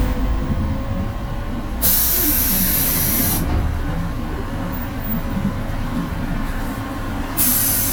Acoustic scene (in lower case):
bus